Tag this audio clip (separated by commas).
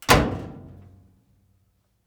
Slam, Door, Domestic sounds